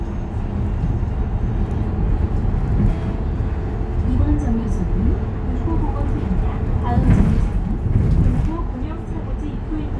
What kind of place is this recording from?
bus